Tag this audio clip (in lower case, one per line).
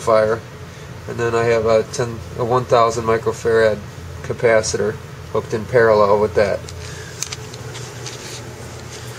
speech